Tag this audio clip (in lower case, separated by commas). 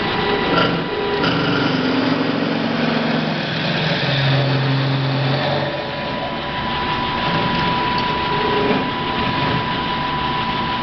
lathe spinning